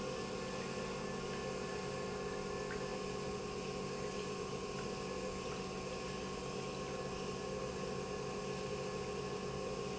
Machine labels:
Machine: pump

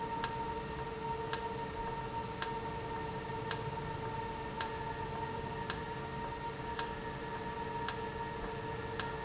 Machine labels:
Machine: valve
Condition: normal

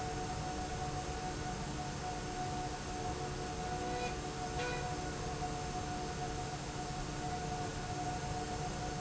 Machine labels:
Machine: slide rail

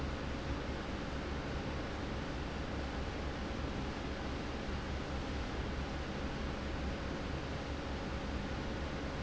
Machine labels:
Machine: fan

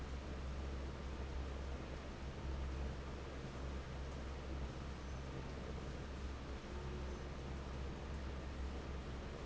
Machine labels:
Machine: fan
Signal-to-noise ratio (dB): 6 dB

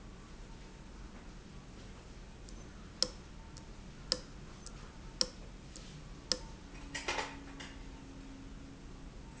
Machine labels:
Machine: valve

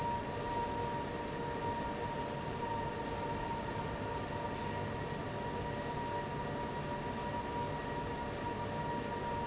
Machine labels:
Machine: fan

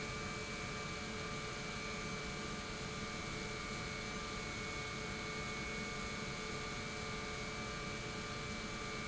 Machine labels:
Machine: pump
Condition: normal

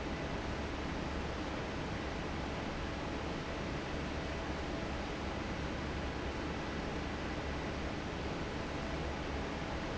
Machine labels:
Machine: fan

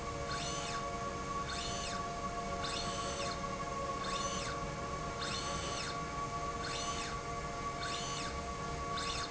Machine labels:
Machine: slide rail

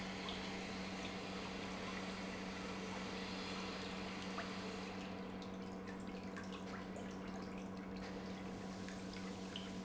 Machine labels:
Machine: pump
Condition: normal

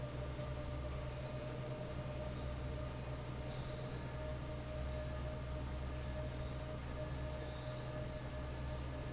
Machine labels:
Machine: fan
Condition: normal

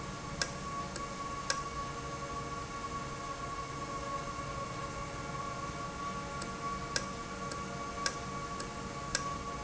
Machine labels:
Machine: valve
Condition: normal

